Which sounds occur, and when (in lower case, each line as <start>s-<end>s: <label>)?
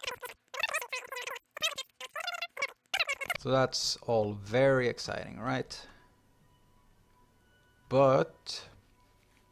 0.0s-0.3s: speech synthesizer
0.0s-9.5s: mechanisms
0.4s-0.5s: tick
0.5s-1.4s: speech synthesizer
1.5s-1.9s: speech synthesizer
2.0s-2.7s: speech synthesizer
2.8s-2.9s: tick
2.9s-3.4s: speech synthesizer
3.3s-9.5s: music
3.4s-5.9s: man speaking
5.4s-5.5s: tick
5.7s-6.1s: breathing
5.8s-5.9s: tick
7.1s-7.2s: tick
7.6s-7.6s: tick
7.9s-8.3s: man speaking
8.4s-8.7s: man speaking
8.8s-9.5s: surface contact